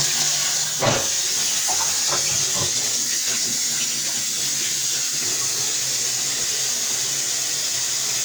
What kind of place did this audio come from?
kitchen